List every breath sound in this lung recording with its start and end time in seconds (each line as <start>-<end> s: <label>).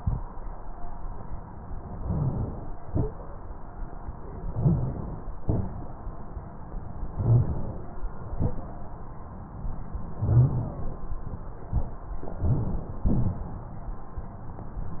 1.90-2.90 s: inhalation
1.97-2.37 s: rhonchi
2.90-4.50 s: exhalation
4.48-4.98 s: rhonchi
4.52-5.45 s: inhalation
5.45-7.14 s: exhalation
7.13-7.64 s: rhonchi
7.15-8.08 s: inhalation
8.12-10.13 s: exhalation
10.13-11.23 s: inhalation
10.19-10.69 s: rhonchi
11.25-12.37 s: exhalation
12.35-13.05 s: inhalation
12.45-12.78 s: rhonchi
13.07-13.41 s: rhonchi
13.07-15.00 s: exhalation